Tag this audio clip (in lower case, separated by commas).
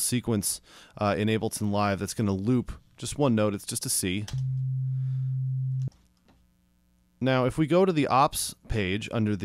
speech